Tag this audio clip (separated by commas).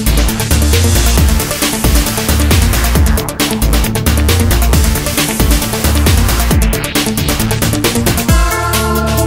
Trance music, Music